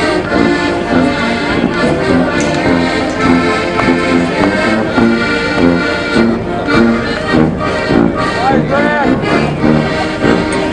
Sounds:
music, speech

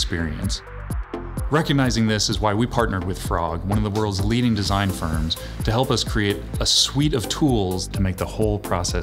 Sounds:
music, speech

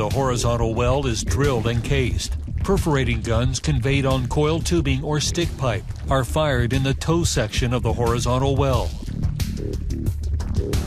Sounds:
music, speech

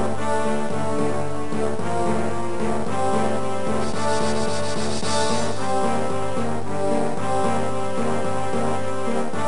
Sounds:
soundtrack music, music

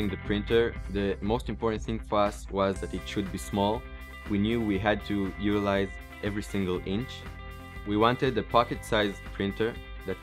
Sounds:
speech, music

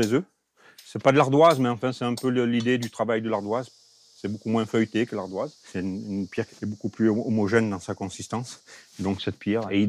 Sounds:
sharpen knife

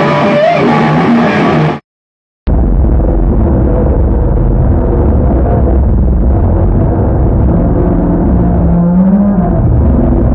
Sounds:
musical instrument, guitar, electric guitar, music, plucked string instrument

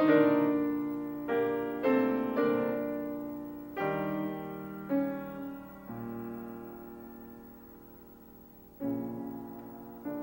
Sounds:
piano, musical instrument, music

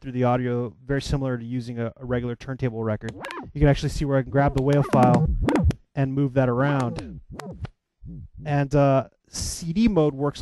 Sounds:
scratching (performance technique), speech

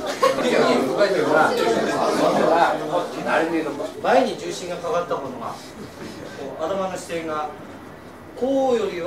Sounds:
speech

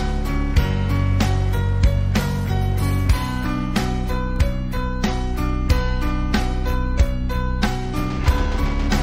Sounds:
music

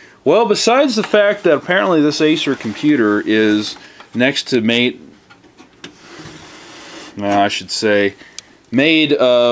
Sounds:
speech, inside a small room

